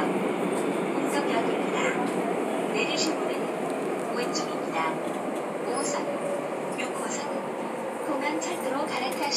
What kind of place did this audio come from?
subway train